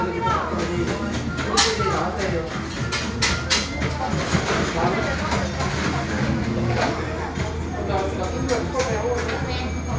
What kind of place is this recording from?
cafe